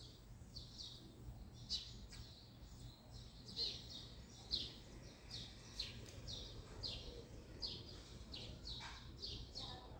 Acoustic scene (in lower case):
residential area